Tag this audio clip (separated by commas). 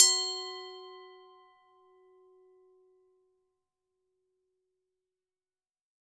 Glass